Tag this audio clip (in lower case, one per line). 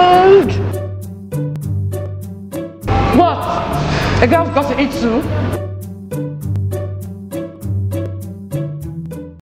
speech
music